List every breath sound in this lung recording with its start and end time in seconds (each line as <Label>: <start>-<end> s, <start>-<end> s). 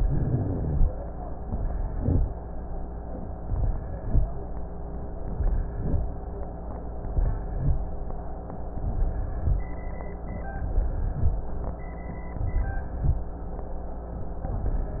Inhalation: 0.00-0.82 s, 1.48-2.30 s, 3.42-4.25 s, 5.18-6.02 s, 7.11-7.74 s, 8.78-9.54 s, 10.61-11.37 s, 12.43-13.19 s
Rhonchi: 0.00-0.82 s, 1.90-2.30 s